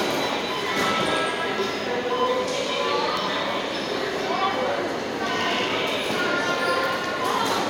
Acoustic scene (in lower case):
subway station